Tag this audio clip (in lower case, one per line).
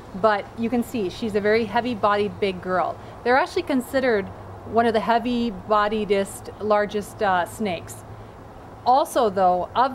outside, rural or natural
speech